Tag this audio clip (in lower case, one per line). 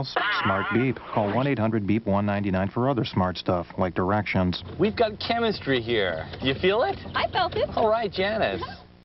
music
speech